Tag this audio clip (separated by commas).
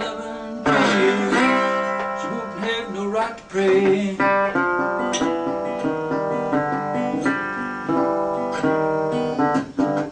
Plucked string instrument, slide guitar, Guitar, Musical instrument, Music, Strum